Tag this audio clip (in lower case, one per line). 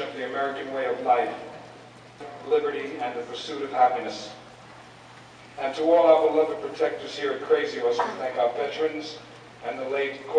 speech